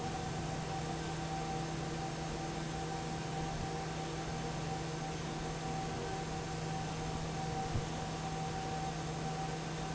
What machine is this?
fan